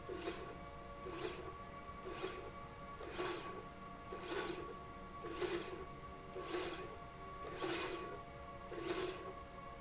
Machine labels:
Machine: slide rail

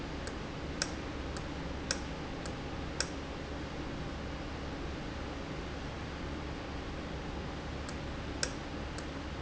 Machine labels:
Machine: valve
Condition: normal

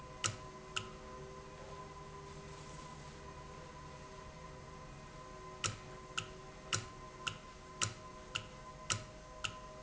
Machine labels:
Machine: valve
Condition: normal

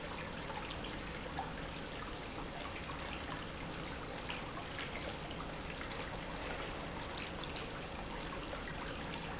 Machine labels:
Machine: pump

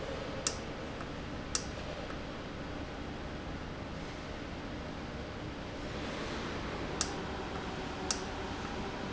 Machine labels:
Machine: valve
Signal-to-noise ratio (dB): -6 dB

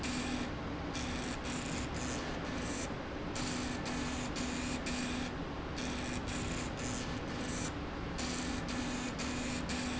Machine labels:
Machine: slide rail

